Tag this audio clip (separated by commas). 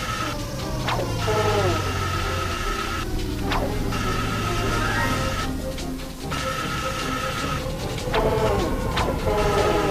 Music